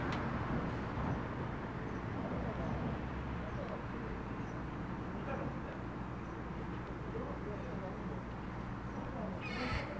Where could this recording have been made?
in a residential area